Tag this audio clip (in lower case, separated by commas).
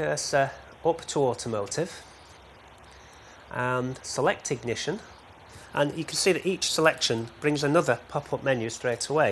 speech